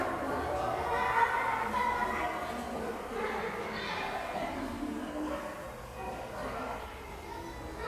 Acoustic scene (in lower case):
crowded indoor space